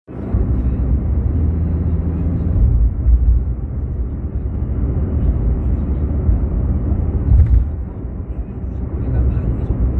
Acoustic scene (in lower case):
car